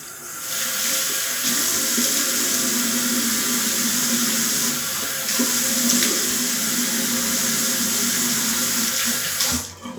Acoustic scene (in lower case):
restroom